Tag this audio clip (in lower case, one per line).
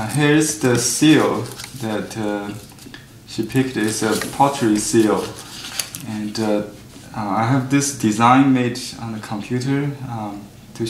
speech